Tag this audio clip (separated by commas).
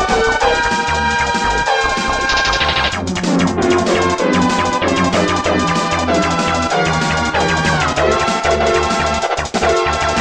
Music